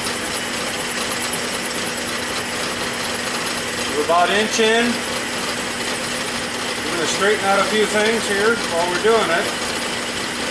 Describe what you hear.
A machine vibrates nearby while a man speaks